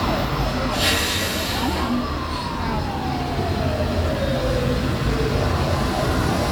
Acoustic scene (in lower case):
street